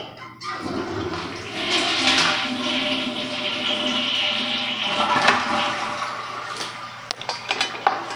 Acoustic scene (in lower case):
restroom